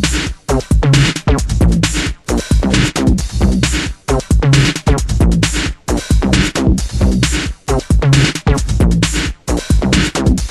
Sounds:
music

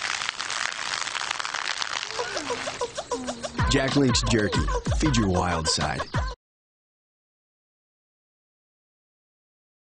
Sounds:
gurgling
speech
music

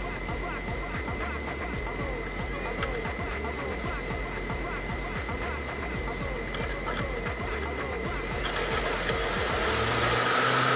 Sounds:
music
cacophony

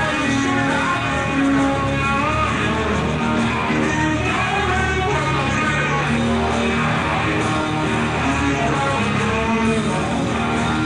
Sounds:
guitar
plucked string instrument
rock music
music
psychedelic rock

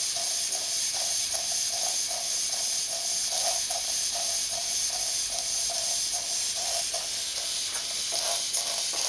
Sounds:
hiss

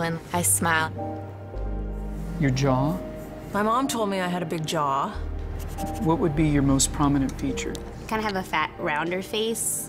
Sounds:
speech
music

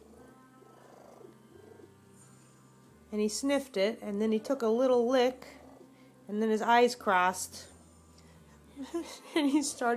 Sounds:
speech
cat
animal
pets

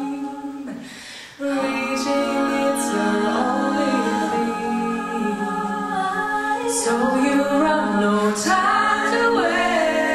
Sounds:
music

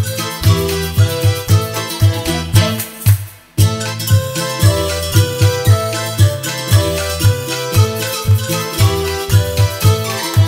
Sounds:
music

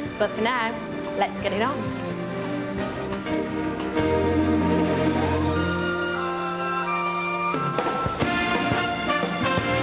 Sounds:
music
speech

